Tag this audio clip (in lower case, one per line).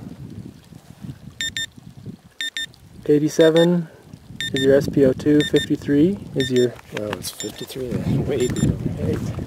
speech